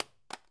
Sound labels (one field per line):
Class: object falling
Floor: carpet